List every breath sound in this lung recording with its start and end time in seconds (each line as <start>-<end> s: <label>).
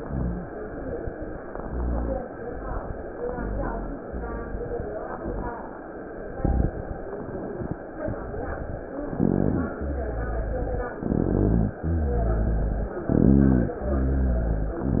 0.00-0.46 s: inhalation
0.00-0.48 s: rhonchi
1.54-2.22 s: inhalation
1.56-2.24 s: rhonchi
3.28-3.95 s: rhonchi
3.30-3.95 s: inhalation
4.04-4.88 s: exhalation
4.04-4.88 s: rhonchi
9.11-9.77 s: rhonchi
9.12-9.79 s: inhalation
9.81-10.93 s: exhalation
9.81-10.93 s: rhonchi
10.98-11.73 s: inhalation
11.00-11.77 s: rhonchi
11.84-12.96 s: exhalation
11.84-12.96 s: rhonchi
13.11-13.78 s: inhalation
13.11-13.78 s: rhonchi
13.85-14.82 s: exhalation
13.89-14.82 s: rhonchi